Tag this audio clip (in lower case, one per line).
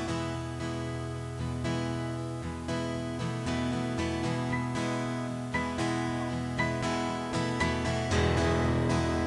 music